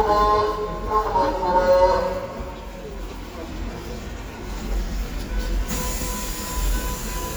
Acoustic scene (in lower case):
subway station